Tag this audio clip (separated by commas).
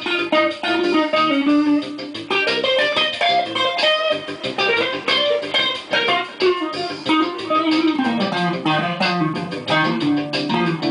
Music, Guitar, Electric guitar, Musical instrument